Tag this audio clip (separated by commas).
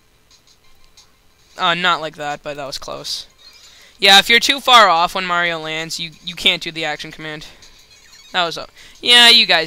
Speech, Music